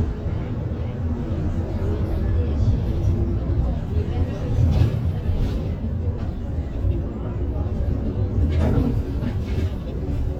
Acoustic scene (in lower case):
bus